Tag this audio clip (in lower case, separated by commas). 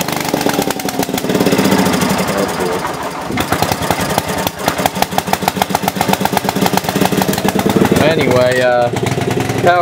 inside a small room, speech